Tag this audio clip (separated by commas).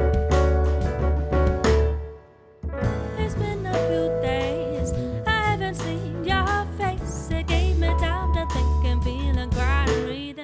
Music, Sound effect